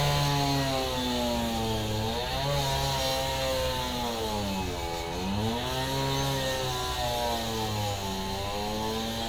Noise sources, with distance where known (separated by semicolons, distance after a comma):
large rotating saw, near